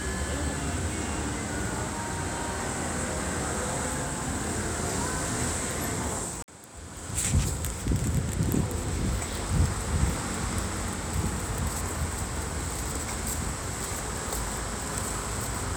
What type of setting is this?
street